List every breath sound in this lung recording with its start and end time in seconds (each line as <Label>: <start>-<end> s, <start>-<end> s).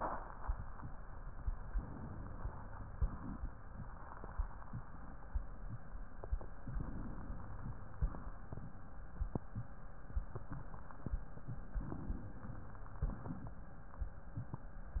Inhalation: 1.75-2.92 s, 6.64-7.97 s, 11.74-13.07 s
Exhalation: 2.92-3.53 s, 7.97-8.52 s, 13.07-13.66 s